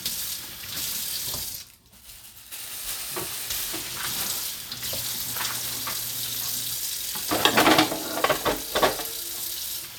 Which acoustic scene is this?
kitchen